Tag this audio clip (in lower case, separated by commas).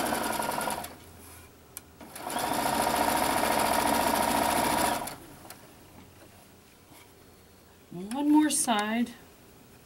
speech, sewing machine